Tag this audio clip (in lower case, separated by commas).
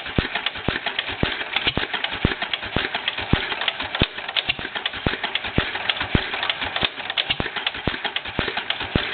engine, medium engine (mid frequency), idling